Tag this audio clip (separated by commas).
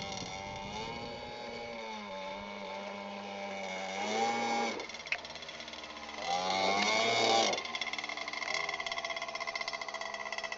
Motorboat